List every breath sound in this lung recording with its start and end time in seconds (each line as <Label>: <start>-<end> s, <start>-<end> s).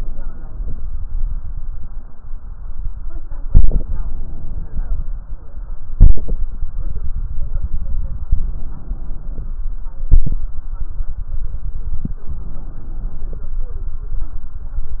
Inhalation: 3.44-5.08 s, 8.29-9.60 s, 12.32-13.52 s
Exhalation: 5.94-6.51 s, 10.01-10.49 s
Crackles: 12.32-13.52 s